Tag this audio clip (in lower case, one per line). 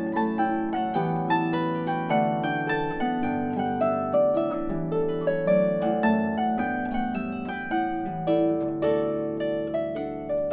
playing harp
harp
pizzicato